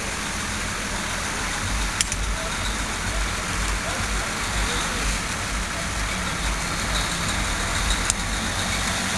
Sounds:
truck, vehicle

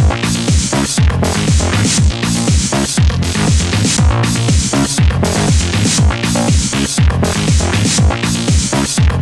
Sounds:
electronic music, trance music, music

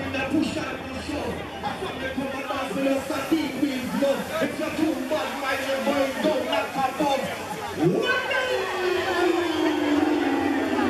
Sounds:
music, speech

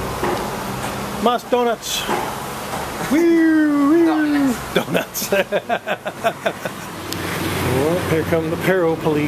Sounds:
speech, outside, urban or man-made, car

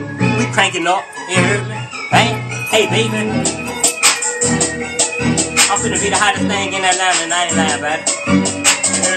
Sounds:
speech, music, inside a small room

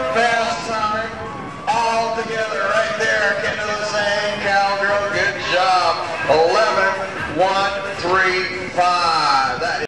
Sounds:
speech

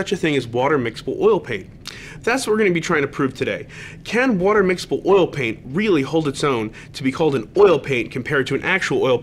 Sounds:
speech

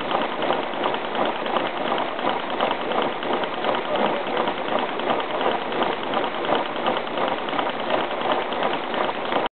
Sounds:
medium engine (mid frequency), engine

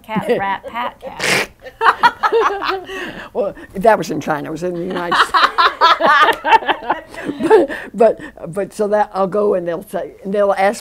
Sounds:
speech

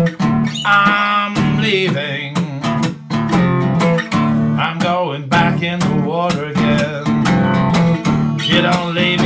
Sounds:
music, steel guitar

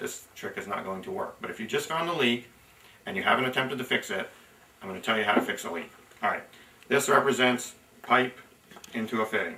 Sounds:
speech, inside a small room

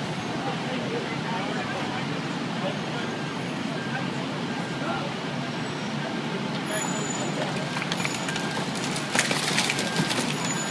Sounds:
speech

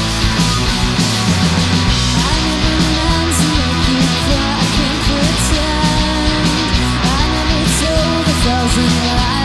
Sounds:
music

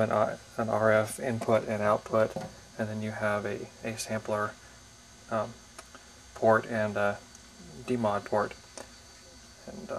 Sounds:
speech

